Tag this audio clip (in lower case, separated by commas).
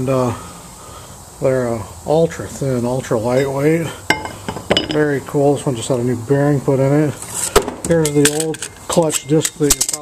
speech